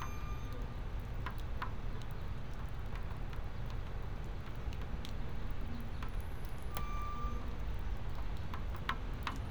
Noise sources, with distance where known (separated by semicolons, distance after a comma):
background noise